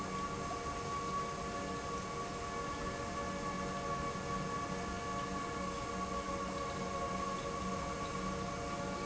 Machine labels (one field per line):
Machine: pump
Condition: normal